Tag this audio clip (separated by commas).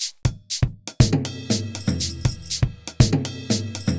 Drum, Percussion, Drum kit, Music, Musical instrument